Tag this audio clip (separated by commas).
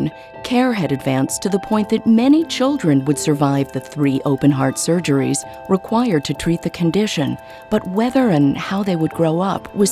Speech, Music